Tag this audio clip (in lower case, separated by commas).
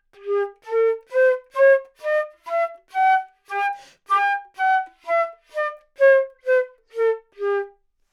musical instrument, wind instrument, music